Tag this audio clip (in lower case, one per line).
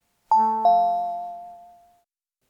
telephone
alarm